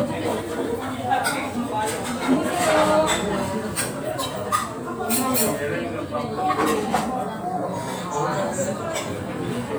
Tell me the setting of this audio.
restaurant